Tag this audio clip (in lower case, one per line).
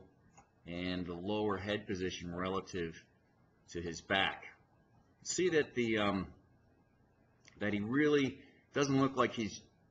speech